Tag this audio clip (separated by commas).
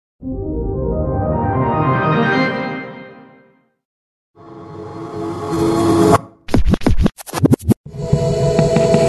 Music